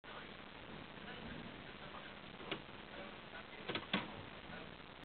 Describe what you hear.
Two soft clicks